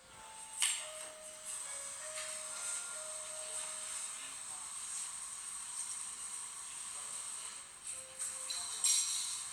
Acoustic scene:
cafe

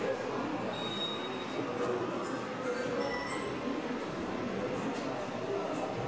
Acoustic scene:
subway station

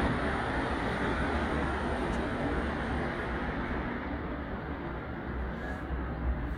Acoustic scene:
street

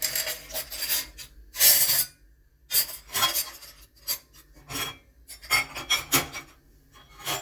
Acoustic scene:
kitchen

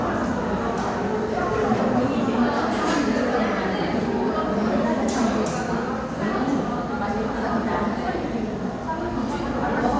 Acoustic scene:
crowded indoor space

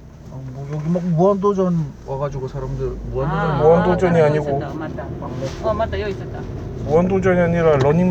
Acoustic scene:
car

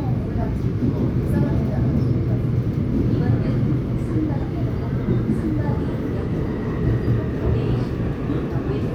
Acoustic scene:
subway train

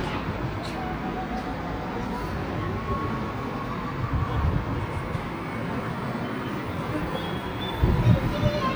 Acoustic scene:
residential area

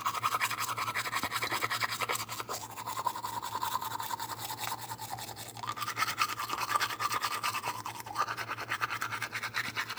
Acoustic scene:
restroom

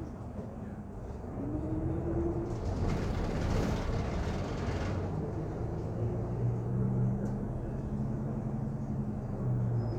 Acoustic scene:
bus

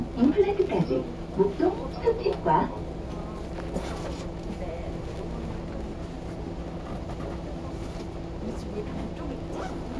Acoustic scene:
bus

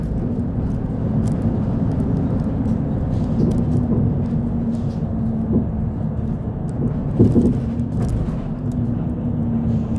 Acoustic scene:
bus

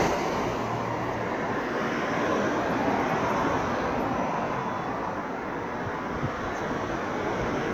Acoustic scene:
street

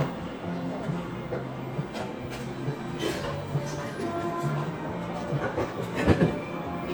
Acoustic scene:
cafe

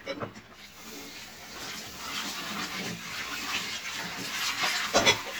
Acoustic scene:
kitchen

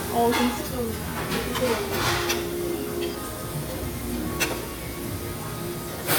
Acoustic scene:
restaurant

